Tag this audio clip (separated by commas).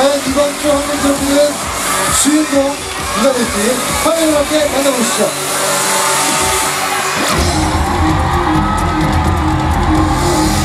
man speaking, Music, Speech